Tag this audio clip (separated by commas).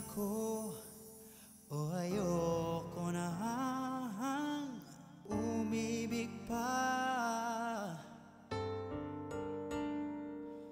Music